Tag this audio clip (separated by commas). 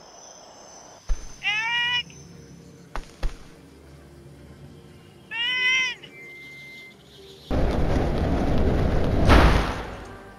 Speech, Music